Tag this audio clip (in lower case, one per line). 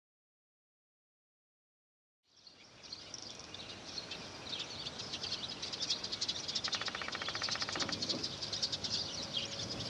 outside, rural or natural
bird call
tweet
bird
environmental noise